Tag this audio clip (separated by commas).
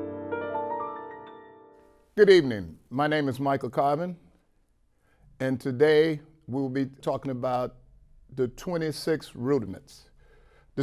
Speech